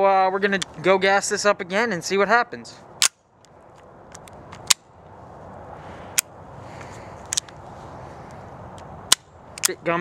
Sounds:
speech
outside, urban or man-made

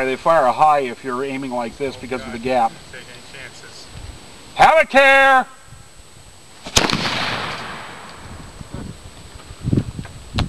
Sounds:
speech

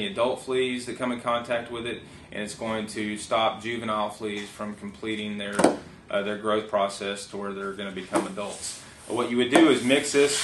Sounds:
speech

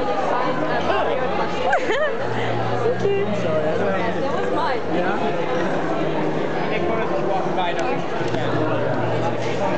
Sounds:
speech

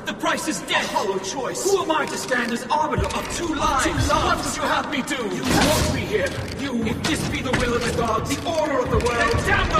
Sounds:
speech

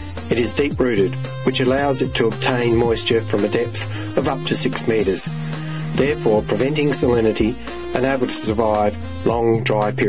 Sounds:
speech
music

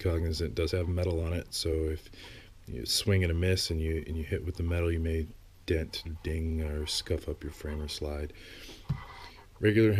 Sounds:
speech

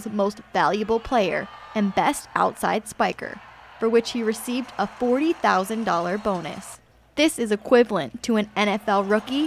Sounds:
speech

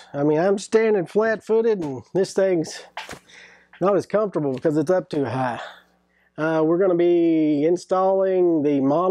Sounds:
speech

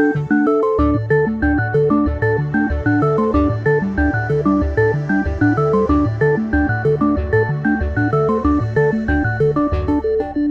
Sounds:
music

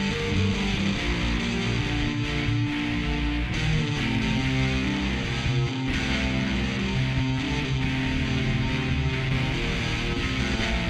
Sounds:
music

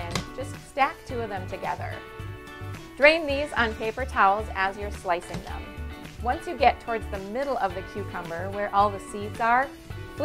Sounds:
speech
music

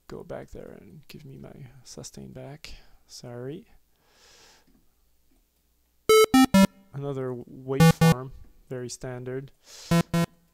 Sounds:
speech

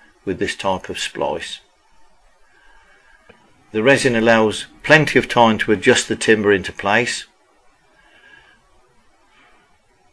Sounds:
speech

